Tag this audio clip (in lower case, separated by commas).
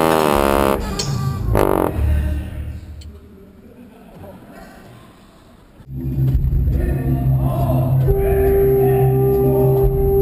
speech, music